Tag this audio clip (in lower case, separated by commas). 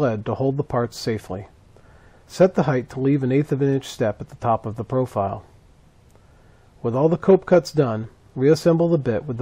speech